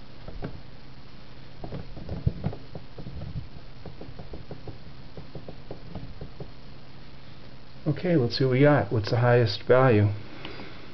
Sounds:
speech

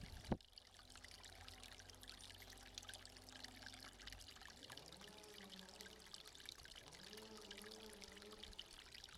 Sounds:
pour

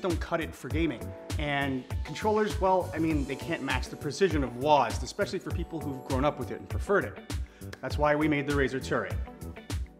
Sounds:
music, speech

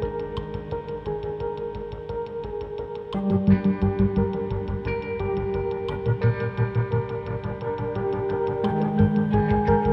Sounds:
music, theme music

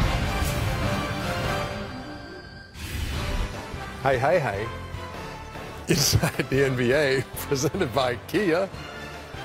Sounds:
speech, music

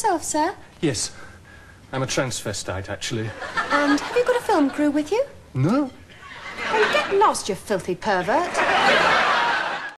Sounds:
speech

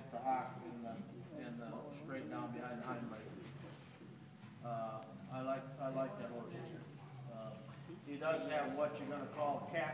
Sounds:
speech

